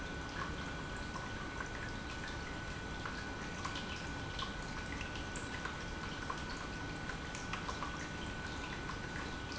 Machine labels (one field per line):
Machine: pump